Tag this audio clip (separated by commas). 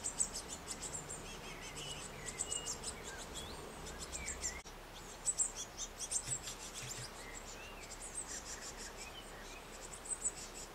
black capped chickadee calling